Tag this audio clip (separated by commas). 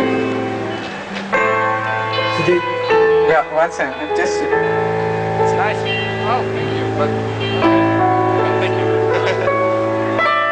Music, Speech